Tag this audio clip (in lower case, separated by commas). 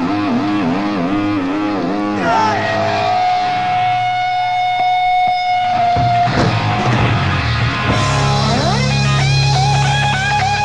music